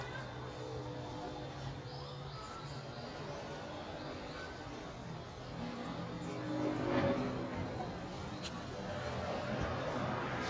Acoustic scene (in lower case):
residential area